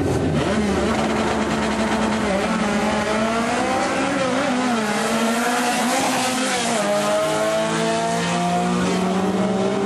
Vehicles rev engines, and speed by